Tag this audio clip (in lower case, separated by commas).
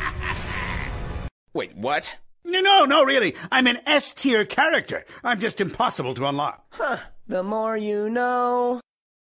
speech, music